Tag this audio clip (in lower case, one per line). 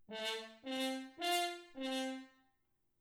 musical instrument
brass instrument
music